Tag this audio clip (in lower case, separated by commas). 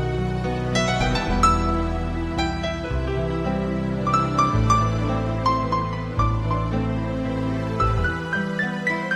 music